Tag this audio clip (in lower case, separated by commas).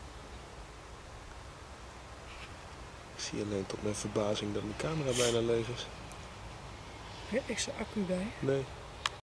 speech